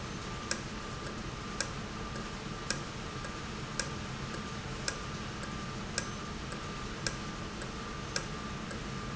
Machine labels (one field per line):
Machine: valve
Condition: normal